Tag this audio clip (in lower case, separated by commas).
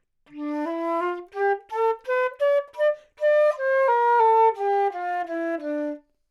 woodwind instrument, musical instrument, music